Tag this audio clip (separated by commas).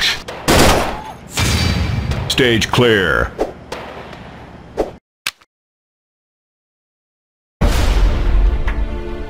Speech, Music